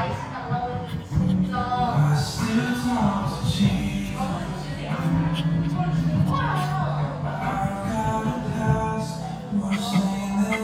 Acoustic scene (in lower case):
cafe